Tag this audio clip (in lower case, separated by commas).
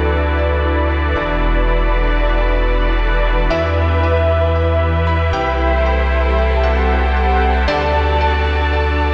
music